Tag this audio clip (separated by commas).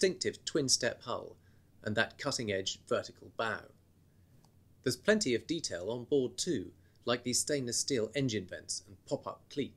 Speech